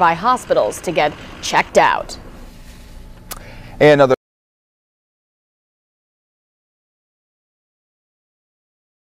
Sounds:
Speech

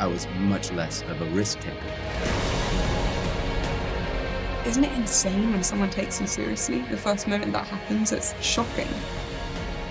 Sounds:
Music, Speech

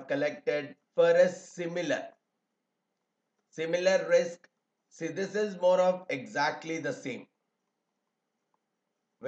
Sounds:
Speech

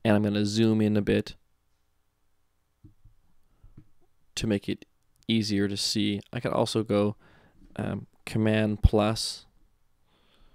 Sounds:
Speech

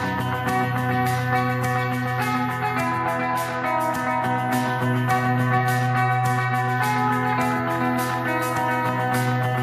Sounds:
Musical instrument, Guitar, Music, Electric guitar

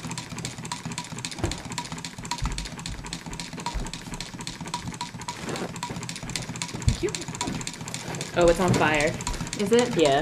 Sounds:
Speech

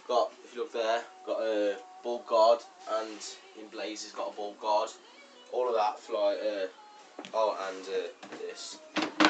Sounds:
inside a small room, Music, Speech

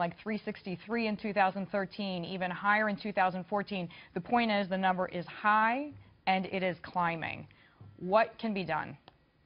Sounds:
Speech

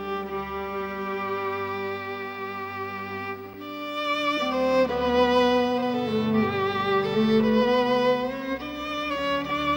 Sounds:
Classical music, Violin, Musical instrument, Bowed string instrument, Music

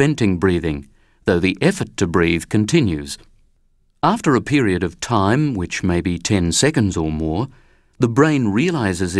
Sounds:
Speech, monologue

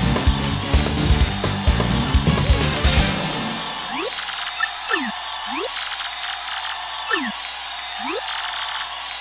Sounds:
Music

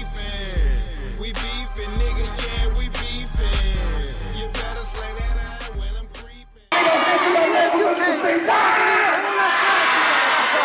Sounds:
inside a large room or hall, Music, Hip hop music, Speech

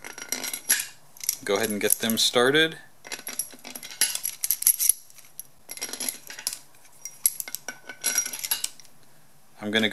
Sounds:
Speech

